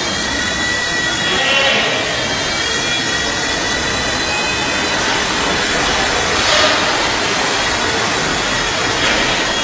An engine working